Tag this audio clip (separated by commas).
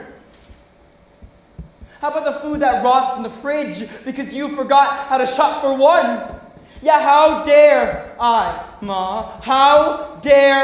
Speech